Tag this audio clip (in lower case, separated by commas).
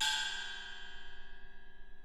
percussion, music, gong, musical instrument